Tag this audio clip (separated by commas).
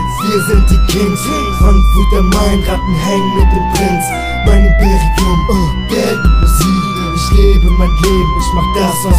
Reverberation, Music